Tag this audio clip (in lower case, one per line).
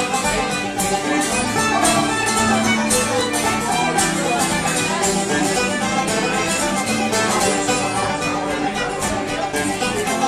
music